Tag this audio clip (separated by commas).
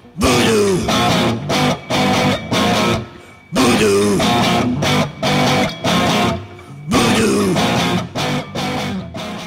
Electric guitar, Music, Speech, Singing